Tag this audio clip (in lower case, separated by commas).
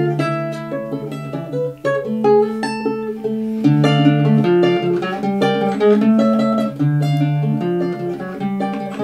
strum, acoustic guitar, plucked string instrument, guitar, musical instrument, music